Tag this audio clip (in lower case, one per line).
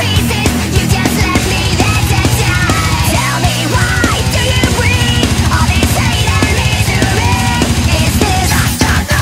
music